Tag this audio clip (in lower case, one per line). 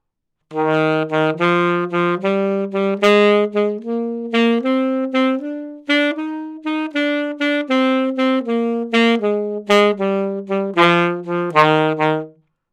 woodwind instrument
music
musical instrument